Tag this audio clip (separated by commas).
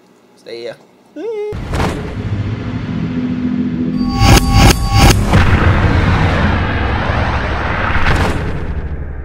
Boom, Music, Speech, thud